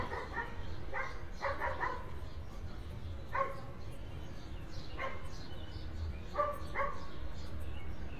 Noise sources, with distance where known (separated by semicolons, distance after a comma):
dog barking or whining, near